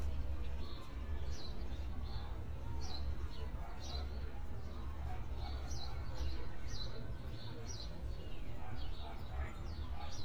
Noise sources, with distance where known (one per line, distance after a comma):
dog barking or whining, far